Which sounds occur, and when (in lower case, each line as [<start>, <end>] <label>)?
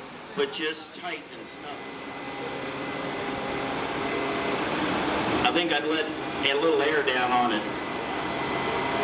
[0.00, 1.75] man speaking
[0.00, 9.03] mechanisms
[5.39, 6.09] man speaking
[6.39, 7.68] man speaking